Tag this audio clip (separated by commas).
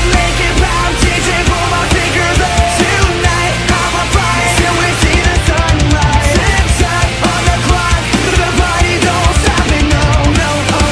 Music